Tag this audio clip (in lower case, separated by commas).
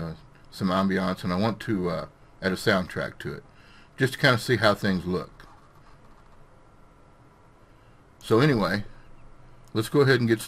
speech